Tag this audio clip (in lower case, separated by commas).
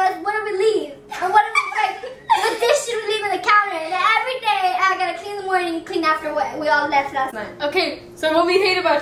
speech, inside a small room